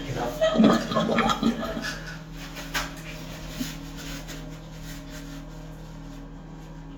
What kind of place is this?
restroom